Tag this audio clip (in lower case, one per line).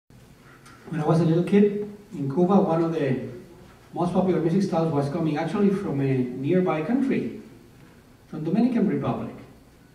male speech
speech